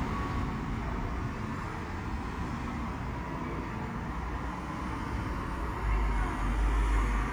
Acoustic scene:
street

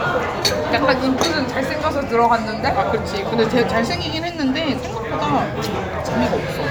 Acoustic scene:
crowded indoor space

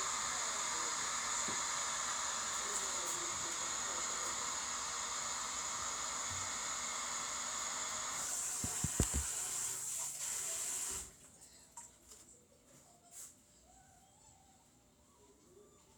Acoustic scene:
kitchen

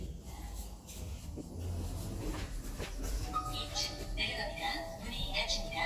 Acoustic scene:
elevator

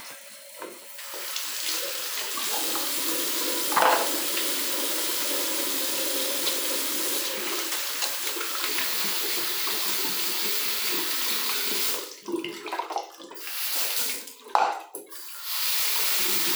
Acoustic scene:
restroom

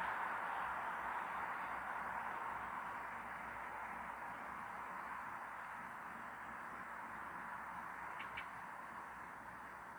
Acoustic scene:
street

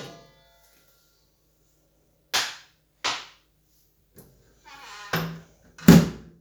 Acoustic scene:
kitchen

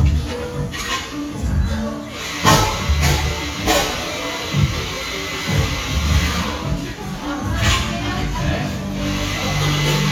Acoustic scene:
cafe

